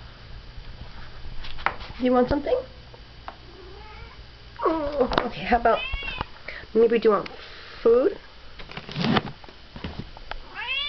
Some one speaking and there is a cat meow sound